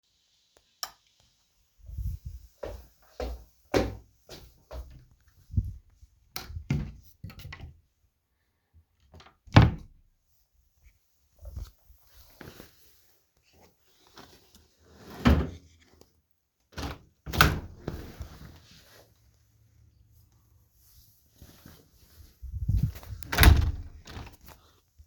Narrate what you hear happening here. I turned on the lights, walked through my room, opened and closed my wardrobe, then opened and closed the window.